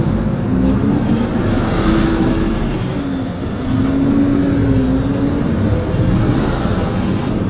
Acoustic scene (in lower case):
bus